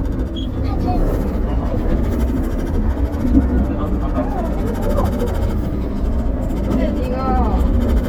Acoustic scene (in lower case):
bus